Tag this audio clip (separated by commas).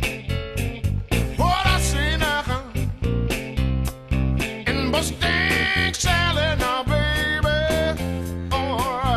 Music